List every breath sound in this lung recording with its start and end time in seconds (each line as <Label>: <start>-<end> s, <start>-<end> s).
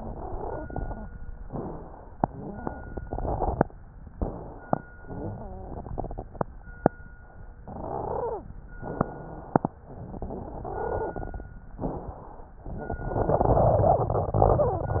Inhalation: 0.00-0.95 s, 2.18-3.69 s, 4.96-6.37 s, 7.68-8.45 s, 9.92-11.49 s
Exhalation: 1.45-2.14 s, 4.11-4.92 s, 8.81-9.74 s, 11.81-12.58 s
Wheeze: 0.00-0.69 s, 2.18-2.90 s, 4.96-6.37 s, 7.83-8.46 s, 10.60-11.15 s